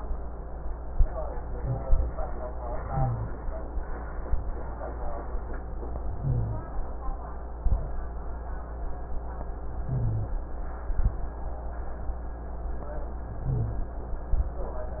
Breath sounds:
Inhalation: 2.85-3.36 s, 6.19-6.70 s, 9.89-10.40 s, 13.43-13.95 s
Exhalation: 7.57-8.08 s, 10.87-11.39 s, 14.31-14.69 s
Rhonchi: 2.85-3.36 s, 6.19-6.70 s, 9.89-10.40 s, 13.43-13.95 s

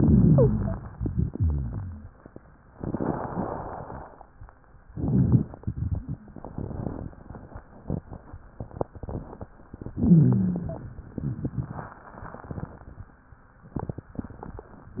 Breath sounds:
Inhalation: 0.00-0.89 s, 4.91-5.50 s, 9.94-10.99 s
Exhalation: 1.10-2.15 s
Wheeze: 0.25-0.53 s
Stridor: 9.94-10.99 s
Rhonchi: 0.00-0.89 s, 1.10-2.15 s, 4.91-5.50 s

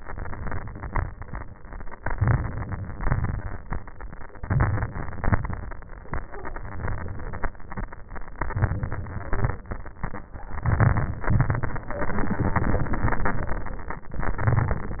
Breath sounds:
Inhalation: 2.01-2.95 s, 4.38-5.05 s, 8.39-9.03 s, 10.65-11.29 s, 14.40-15.00 s
Exhalation: 2.96-3.91 s, 5.04-5.71 s, 9.03-9.68 s, 11.29-11.94 s

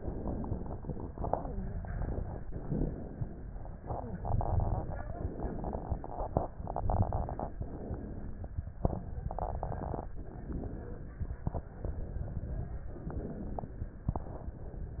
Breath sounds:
Inhalation: 2.44-3.82 s, 5.03-6.52 s, 7.59-8.80 s, 10.18-11.40 s, 12.90-14.10 s
Exhalation: 6.49-7.58 s, 8.80-10.16 s, 11.41-12.93 s

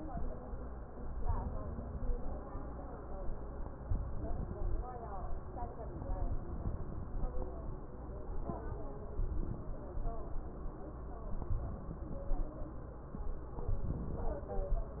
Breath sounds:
Inhalation: 1.11-2.14 s, 3.79-4.82 s, 6.19-7.21 s, 11.35-12.38 s, 13.71-14.74 s

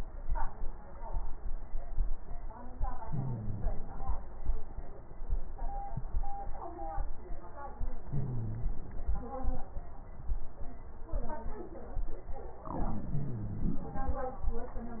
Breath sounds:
Inhalation: 3.08-4.08 s, 8.06-9.03 s, 12.72-13.84 s
Exhalation: 4.07-4.79 s
Crackles: 3.07-4.04 s, 4.07-4.79 s, 8.06-9.03 s, 12.72-13.84 s

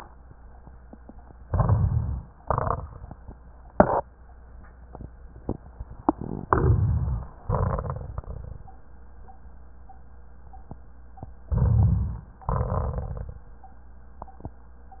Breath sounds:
Inhalation: 1.45-2.41 s, 6.48-7.40 s, 11.49-12.39 s
Exhalation: 2.41-3.29 s, 7.40-8.73 s, 12.52-13.43 s
Crackles: 2.41-3.29 s, 12.52-13.43 s

